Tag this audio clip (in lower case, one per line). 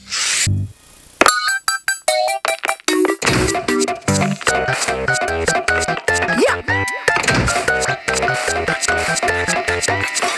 music